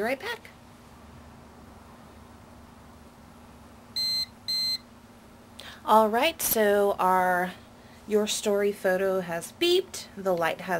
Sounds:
inside a small room, Speech

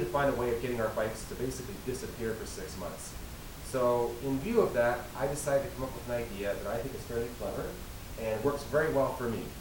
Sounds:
Speech

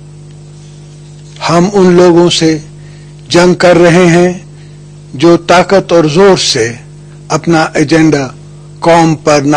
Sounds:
Male speech, Speech

